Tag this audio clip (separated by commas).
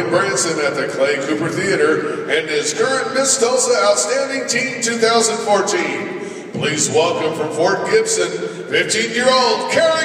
Speech